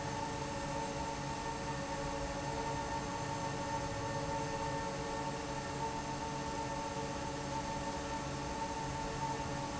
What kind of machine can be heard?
fan